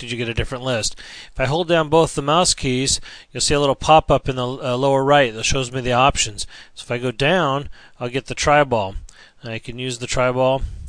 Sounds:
speech

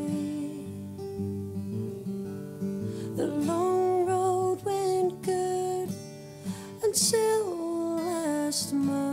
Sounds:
music

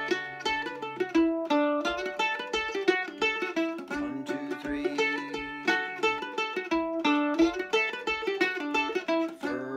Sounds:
playing mandolin

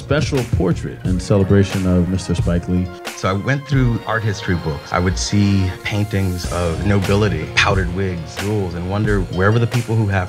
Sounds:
music
speech

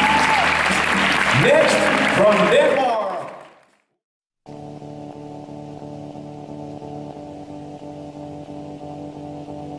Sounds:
speech
music
inside a large room or hall

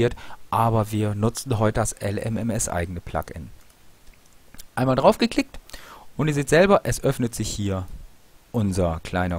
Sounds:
speech

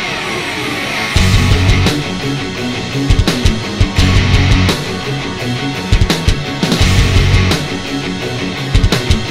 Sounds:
music
angry music

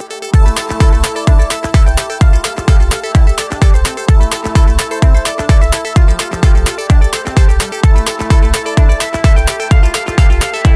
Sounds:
music

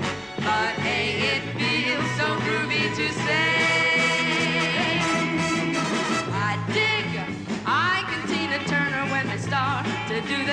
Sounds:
roll
rock and roll
music

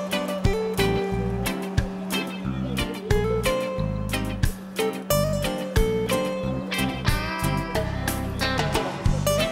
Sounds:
speech
music

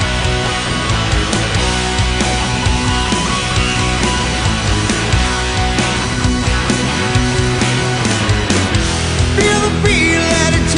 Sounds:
music

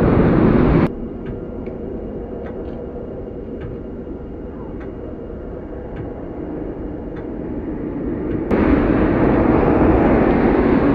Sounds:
vehicle

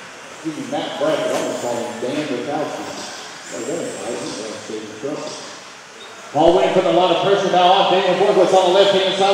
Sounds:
speech

